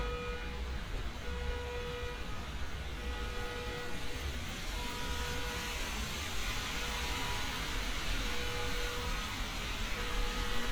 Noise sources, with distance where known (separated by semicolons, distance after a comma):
unidentified alert signal